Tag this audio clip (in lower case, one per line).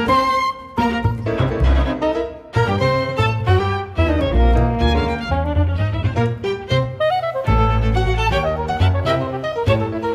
music